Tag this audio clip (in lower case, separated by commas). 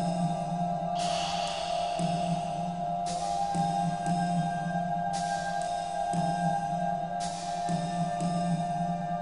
music, sad music